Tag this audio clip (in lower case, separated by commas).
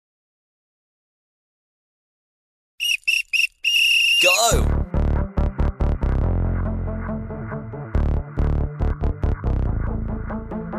music, speech